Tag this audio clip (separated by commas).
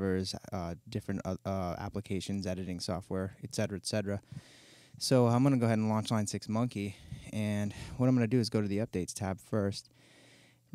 Speech